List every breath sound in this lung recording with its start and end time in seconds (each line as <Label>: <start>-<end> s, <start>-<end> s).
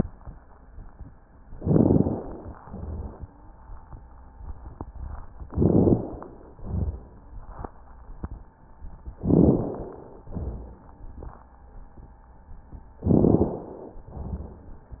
Inhalation: 1.59-2.47 s, 5.50-6.47 s, 9.22-10.23 s, 13.04-14.04 s
Exhalation: 2.66-3.50 s, 6.58-7.43 s, 10.32-11.24 s, 14.08-15.00 s
Wheeze: 3.09-3.54 s
Rhonchi: 2.66-3.22 s, 6.58-7.16 s, 10.32-10.90 s, 14.08-14.66 s
Crackles: 1.59-2.47 s, 5.50-6.21 s, 9.22-9.93 s, 13.04-13.66 s